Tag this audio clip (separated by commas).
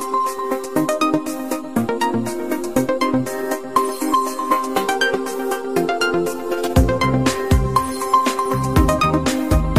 Music